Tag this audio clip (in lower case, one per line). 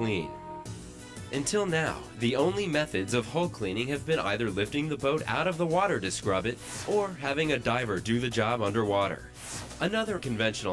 speech
music